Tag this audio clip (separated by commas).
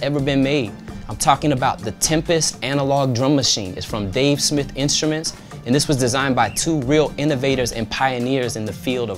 Speech, Music